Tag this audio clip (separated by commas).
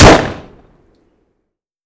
Explosion, Gunshot